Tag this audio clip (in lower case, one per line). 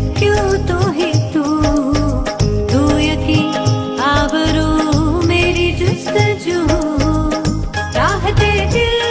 music of bollywood
music